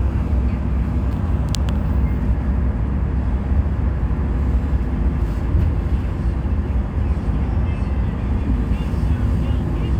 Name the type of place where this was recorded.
bus